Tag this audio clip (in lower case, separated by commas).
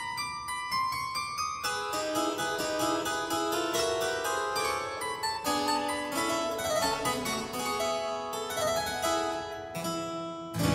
keyboard (musical), piano, harpsichord, musical instrument, classical music, music